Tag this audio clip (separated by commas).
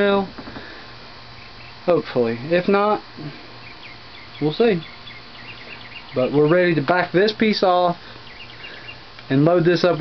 Speech